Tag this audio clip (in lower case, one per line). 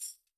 musical instrument
tambourine
music
percussion